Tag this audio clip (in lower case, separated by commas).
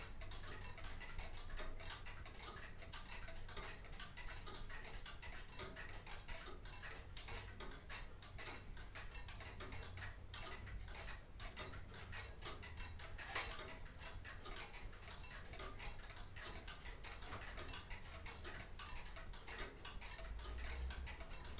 mechanisms, tick-tock, clock